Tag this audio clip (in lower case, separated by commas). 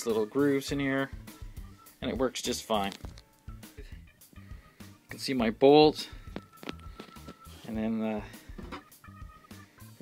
music, speech